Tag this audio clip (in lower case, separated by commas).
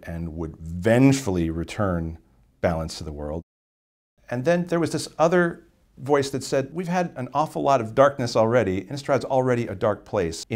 speech, inside a small room